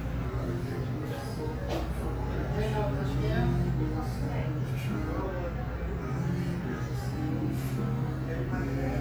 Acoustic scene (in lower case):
cafe